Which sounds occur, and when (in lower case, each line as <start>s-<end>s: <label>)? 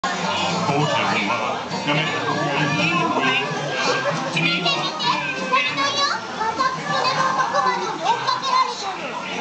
0.1s-9.4s: speech noise
0.9s-6.3s: man speaking
7.0s-9.1s: child speech